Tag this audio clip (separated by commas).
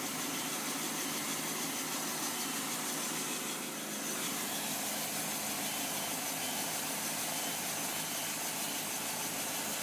Sawing, Wood